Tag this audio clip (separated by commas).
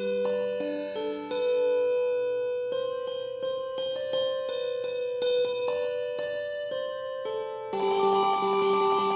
Music